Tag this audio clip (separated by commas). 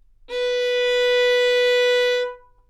Bowed string instrument, Musical instrument, Music